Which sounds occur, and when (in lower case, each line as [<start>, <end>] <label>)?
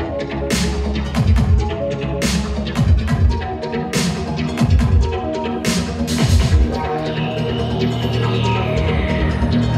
[0.00, 9.75] music
[7.06, 9.49] spray